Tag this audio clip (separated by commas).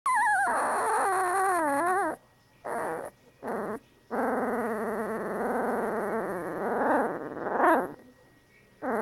dog growling